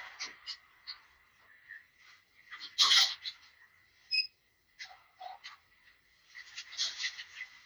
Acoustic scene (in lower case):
elevator